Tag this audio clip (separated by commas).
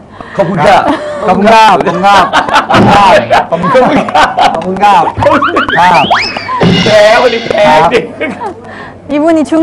Music, Speech